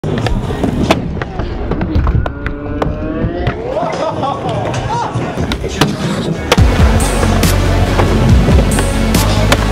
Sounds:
Speech, Music, Skateboard

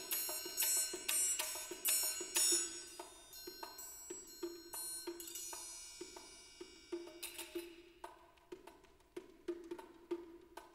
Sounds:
Music

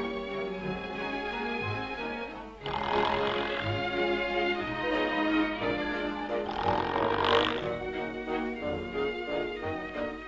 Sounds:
Music

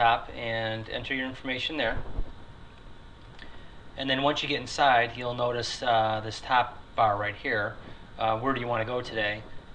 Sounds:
Speech

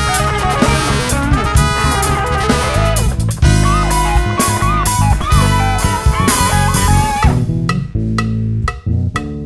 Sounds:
Music

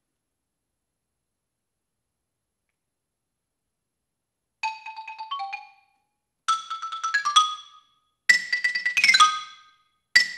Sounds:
playing glockenspiel

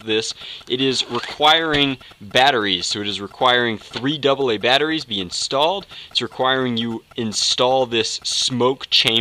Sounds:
Speech

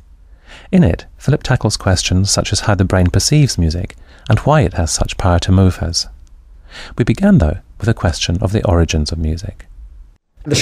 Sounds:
Speech

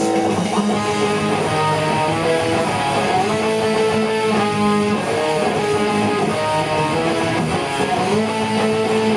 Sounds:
Music

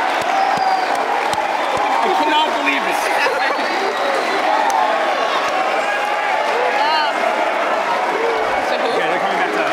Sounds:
Cheering

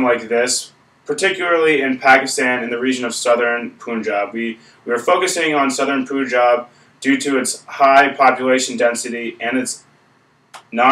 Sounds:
Speech

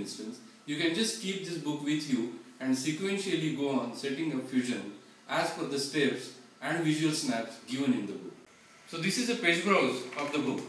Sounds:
Speech

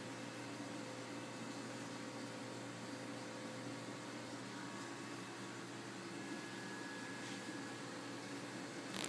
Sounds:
Microwave oven

